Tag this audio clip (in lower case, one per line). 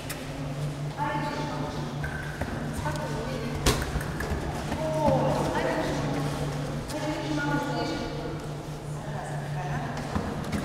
speech
clip-clop